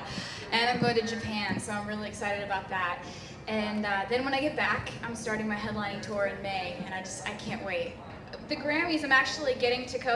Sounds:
Speech

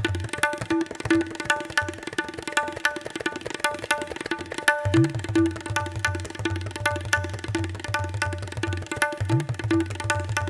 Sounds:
playing tabla

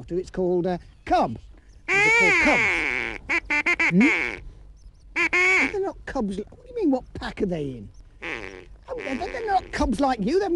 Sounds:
Animal, Speech

